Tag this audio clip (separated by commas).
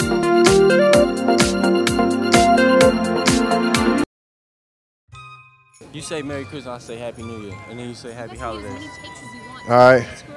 outside, urban or man-made, Speech, Music